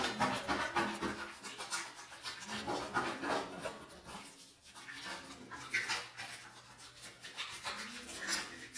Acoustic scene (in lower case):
restroom